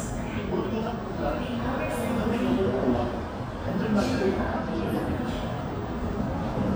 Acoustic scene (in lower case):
subway station